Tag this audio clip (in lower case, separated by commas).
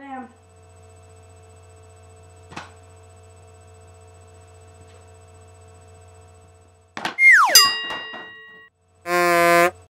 speech